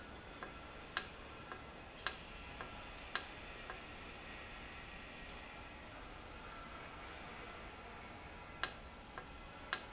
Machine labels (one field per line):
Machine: valve